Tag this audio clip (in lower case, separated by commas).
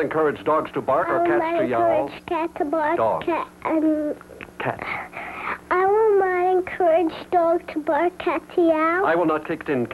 speech